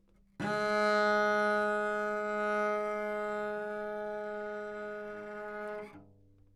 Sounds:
Music, Bowed string instrument, Musical instrument

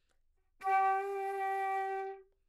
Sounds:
woodwind instrument, Musical instrument, Music

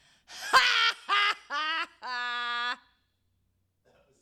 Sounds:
Human voice, Laughter

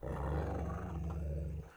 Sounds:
Dog, Growling, pets, Animal

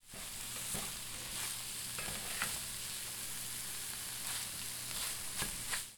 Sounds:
home sounds, Frying (food)

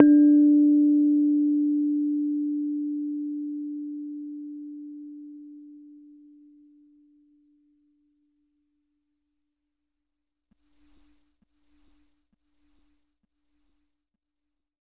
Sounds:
Piano, Music, Musical instrument, Keyboard (musical)

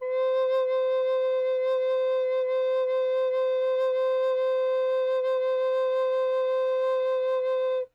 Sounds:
Musical instrument, Music, Wind instrument

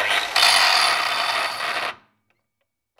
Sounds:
Tools

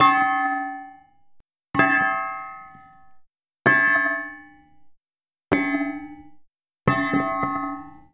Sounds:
Thump

